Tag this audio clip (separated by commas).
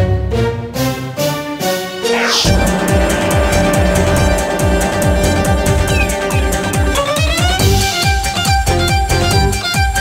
Jingle (music), Music, Theme music